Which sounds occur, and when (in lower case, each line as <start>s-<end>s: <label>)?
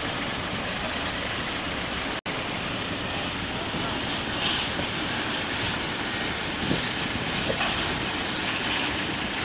0.0s-2.1s: wind
0.0s-2.2s: train
2.2s-9.4s: wind
2.3s-9.4s: train
4.3s-4.8s: clickety-clack
6.6s-7.5s: wind noise (microphone)
6.7s-8.9s: clickety-clack